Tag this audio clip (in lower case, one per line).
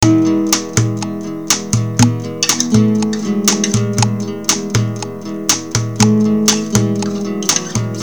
acoustic guitar
guitar
plucked string instrument
musical instrument
music